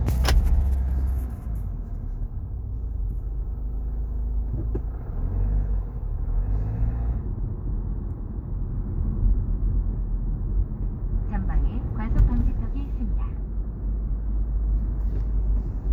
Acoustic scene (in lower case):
car